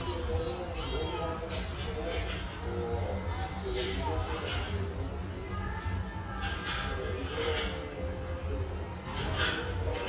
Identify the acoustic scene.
restaurant